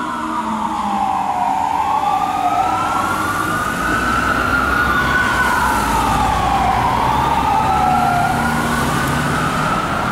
An emergency vehicle travels in traffic and emits the siren and vehicles pass by